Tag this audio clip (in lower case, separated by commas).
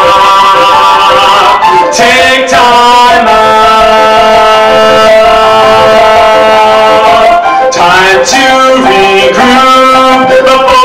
music